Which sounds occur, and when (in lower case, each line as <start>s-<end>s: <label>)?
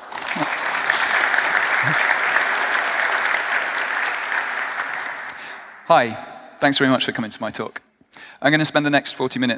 0.0s-5.8s: applause
0.0s-9.5s: background noise
0.3s-0.5s: human voice
1.8s-2.0s: human voice
5.9s-6.2s: male speech
5.9s-9.5s: monologue
6.1s-6.6s: echo
6.6s-7.8s: male speech
7.9s-8.1s: tap
8.1s-8.4s: breathing
8.4s-9.5s: male speech